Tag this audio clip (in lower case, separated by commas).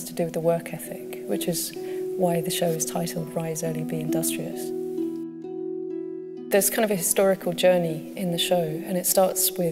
harp